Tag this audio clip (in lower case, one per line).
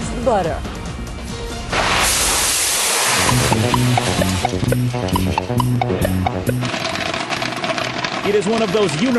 speech
music